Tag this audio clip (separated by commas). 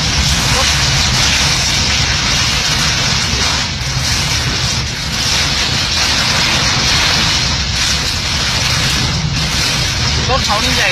raining